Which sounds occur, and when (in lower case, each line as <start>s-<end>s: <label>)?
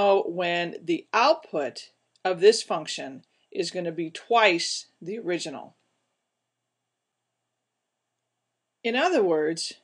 0.0s-1.8s: male speech
0.0s-9.8s: background noise
2.2s-3.2s: male speech
3.4s-4.9s: male speech
5.0s-5.9s: male speech
8.9s-9.8s: male speech